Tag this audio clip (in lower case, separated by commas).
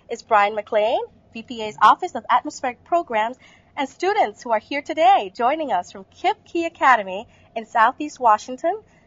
speech